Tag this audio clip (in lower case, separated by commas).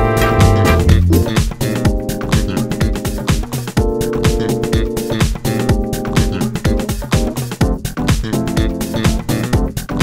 music, jazz, background music